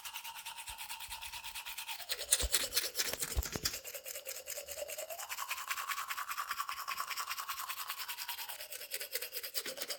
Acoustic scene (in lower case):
restroom